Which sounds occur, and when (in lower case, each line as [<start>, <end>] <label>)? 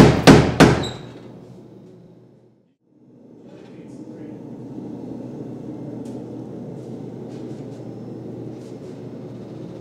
[0.00, 0.77] hammer
[0.00, 2.61] mechanisms
[0.79, 1.00] squeal
[1.83, 1.90] generic impact sounds
[2.93, 9.80] mechanisms
[3.45, 4.38] male speech
[5.99, 6.10] generic impact sounds
[6.70, 7.02] surface contact
[7.24, 7.79] surface contact
[8.52, 8.98] surface contact